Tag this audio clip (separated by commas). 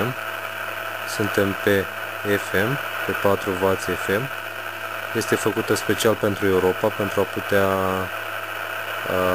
Speech